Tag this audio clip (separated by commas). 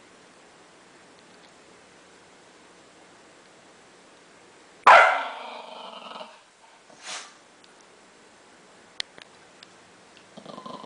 inside a small room, Domestic animals, Bark, Animal, Dog